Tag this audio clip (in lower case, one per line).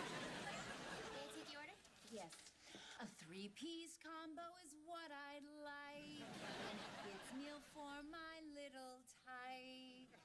female singing